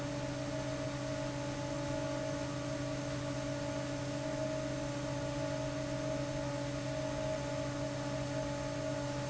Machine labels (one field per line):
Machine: fan